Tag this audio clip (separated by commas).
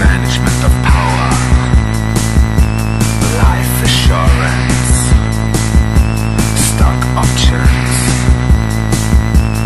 Music